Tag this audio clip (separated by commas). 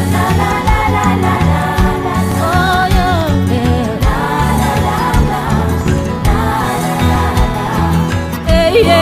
Music